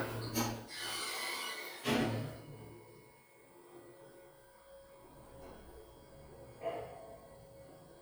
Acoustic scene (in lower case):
elevator